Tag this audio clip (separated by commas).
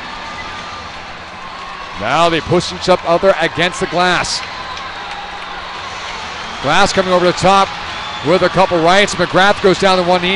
Speech